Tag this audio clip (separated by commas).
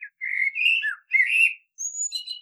Wild animals, Animal, Bird